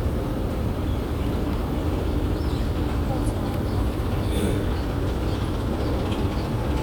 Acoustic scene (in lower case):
subway station